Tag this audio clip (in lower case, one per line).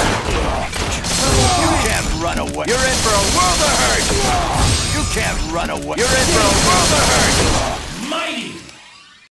speech